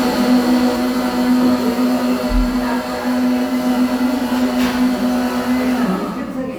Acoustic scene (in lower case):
cafe